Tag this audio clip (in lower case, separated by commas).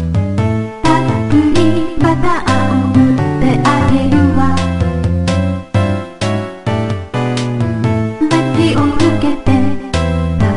music